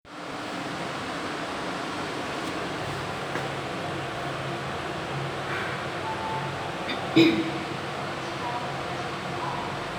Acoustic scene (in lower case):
elevator